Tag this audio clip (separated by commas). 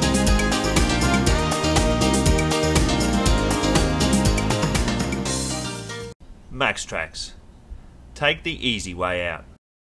Speech, Music